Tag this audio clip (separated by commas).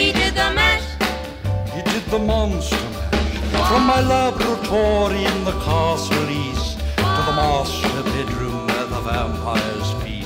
Female singing, Music, Male singing